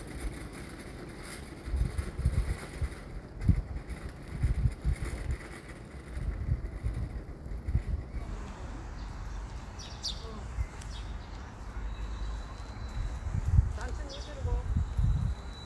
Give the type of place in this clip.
residential area